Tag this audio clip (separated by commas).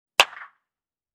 Hands, Clapping